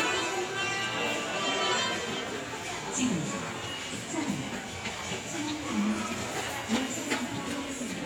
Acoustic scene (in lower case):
subway station